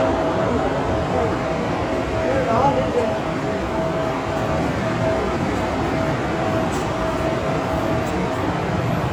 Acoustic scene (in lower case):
subway station